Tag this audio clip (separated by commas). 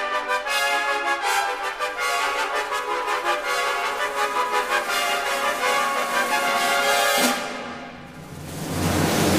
Music